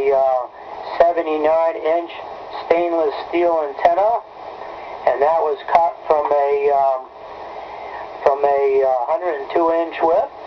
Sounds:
Radio, Speech

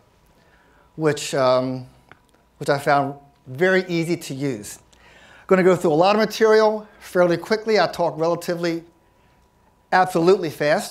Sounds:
Speech

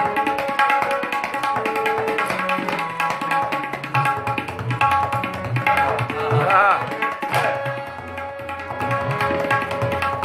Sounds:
playing tabla

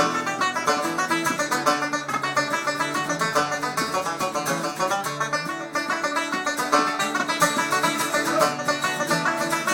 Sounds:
Bluegrass, Music

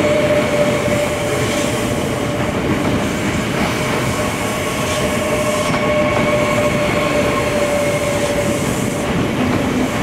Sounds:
Subway, Rail transport, train wagon, Train

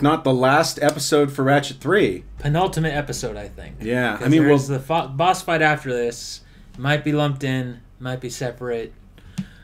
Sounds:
Speech

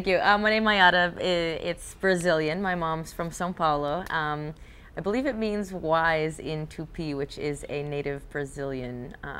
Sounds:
Speech

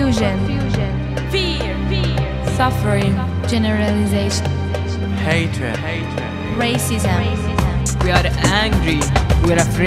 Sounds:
Music, Speech

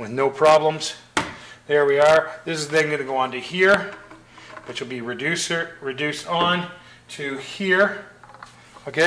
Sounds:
Speech, inside a small room

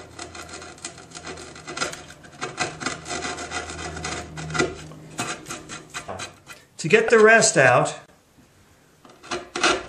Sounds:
Filing (rasp), Rub, Wood

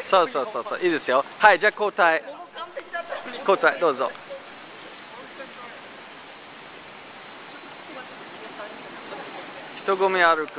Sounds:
inside a large room or hall, Speech

